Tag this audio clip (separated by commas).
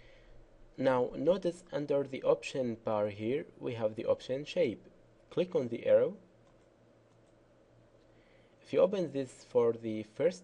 Speech